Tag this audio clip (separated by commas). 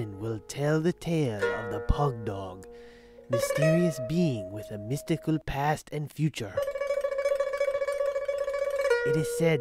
Music, Speech